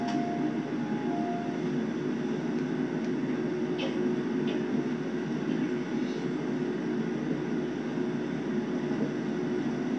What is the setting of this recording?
subway train